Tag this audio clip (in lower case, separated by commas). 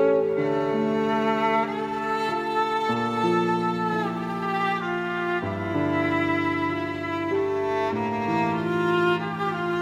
fiddle, musical instrument, music